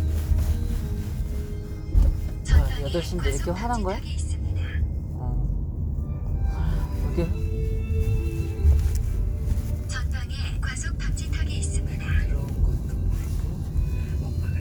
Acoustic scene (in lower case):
car